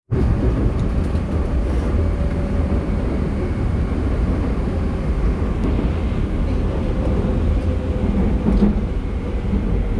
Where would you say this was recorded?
on a subway train